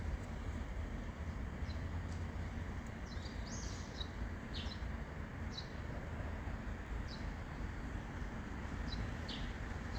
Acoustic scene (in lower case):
residential area